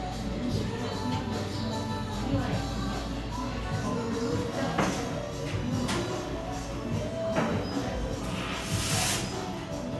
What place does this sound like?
crowded indoor space